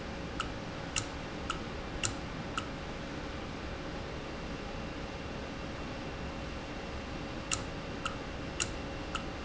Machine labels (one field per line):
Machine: valve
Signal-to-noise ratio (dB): -6 dB